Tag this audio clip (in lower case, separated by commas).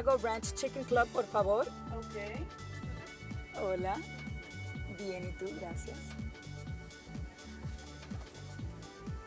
music, speech